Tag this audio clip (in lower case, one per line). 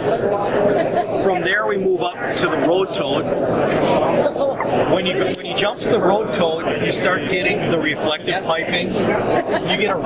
speech